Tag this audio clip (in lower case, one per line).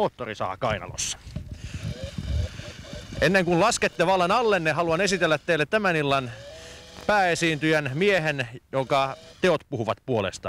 speech
chainsaw